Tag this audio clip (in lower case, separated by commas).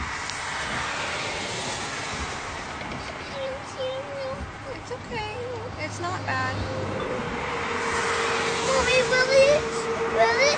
inside a small room, vehicle, speech, kid speaking, outside, rural or natural